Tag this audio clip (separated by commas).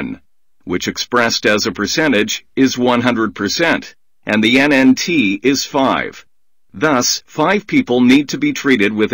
Speech